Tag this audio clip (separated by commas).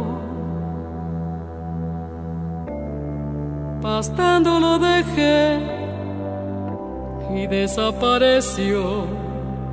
Music